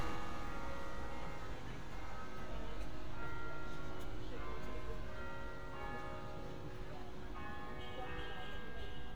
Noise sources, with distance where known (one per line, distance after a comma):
music from an unclear source